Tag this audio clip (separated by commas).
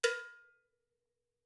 Music, Percussion, Bell, Musical instrument, Cowbell